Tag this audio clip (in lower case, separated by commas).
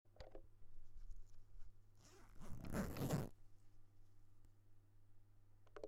zipper (clothing), domestic sounds